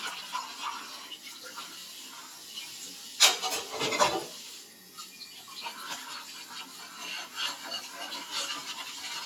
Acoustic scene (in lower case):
kitchen